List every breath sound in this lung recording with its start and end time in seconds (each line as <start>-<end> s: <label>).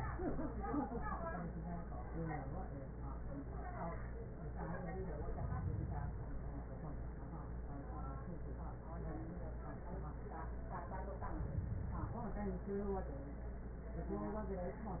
5.22-6.32 s: inhalation
11.23-12.44 s: inhalation